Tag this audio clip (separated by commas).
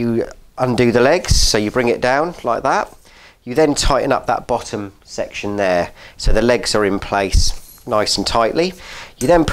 Speech